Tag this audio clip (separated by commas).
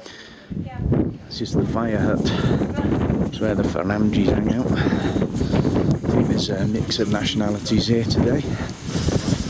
Speech